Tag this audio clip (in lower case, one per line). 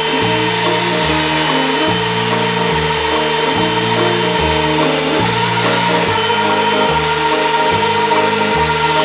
vacuum cleaner cleaning floors